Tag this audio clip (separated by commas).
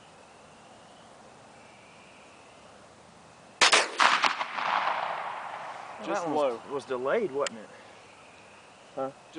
cap gun shooting